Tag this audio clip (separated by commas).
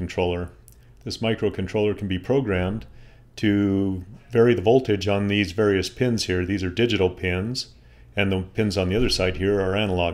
Speech